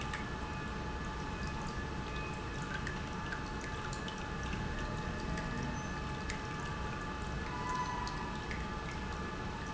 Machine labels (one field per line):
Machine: pump